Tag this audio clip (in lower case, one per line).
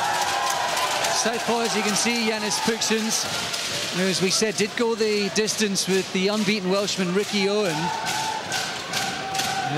speech